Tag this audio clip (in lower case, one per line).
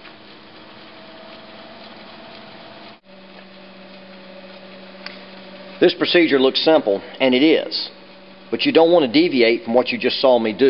inside a small room
speech